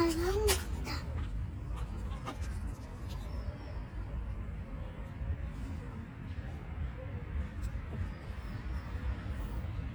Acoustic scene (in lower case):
residential area